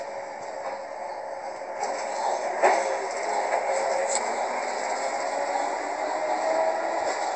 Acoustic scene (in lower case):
bus